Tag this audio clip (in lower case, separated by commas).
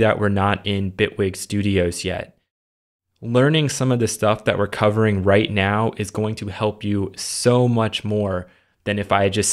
speech